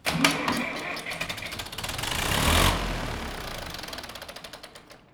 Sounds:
revving, mechanisms, engine

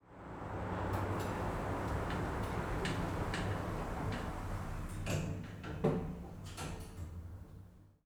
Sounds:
sliding door, door, home sounds

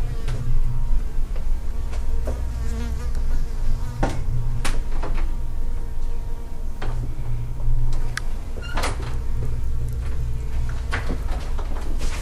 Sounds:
insect, wild animals, buzz, animal

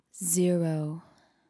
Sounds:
human voice, female speech, speech

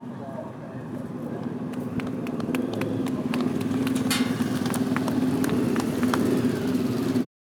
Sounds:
motorcycle, motor vehicle (road), vehicle

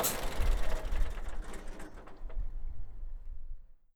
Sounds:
bus, engine, motor vehicle (road), vehicle

